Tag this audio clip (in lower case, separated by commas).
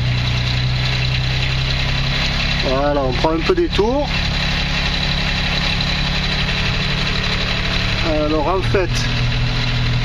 idling, vehicle, engine, speech